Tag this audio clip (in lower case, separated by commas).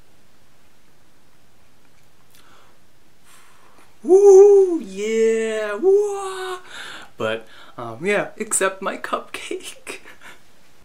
speech, inside a small room